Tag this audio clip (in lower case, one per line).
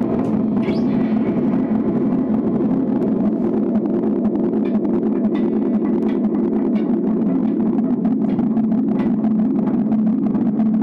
effects unit